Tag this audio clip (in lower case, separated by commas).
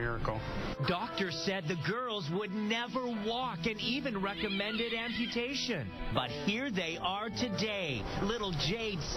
music, speech